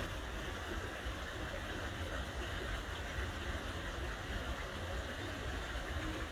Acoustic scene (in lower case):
park